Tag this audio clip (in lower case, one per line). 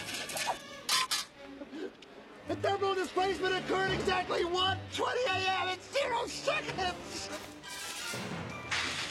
music
speech